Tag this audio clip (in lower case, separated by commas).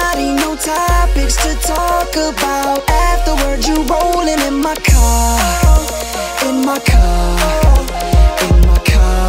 music